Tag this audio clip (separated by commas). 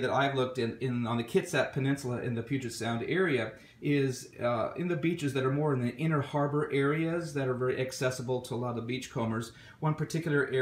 Speech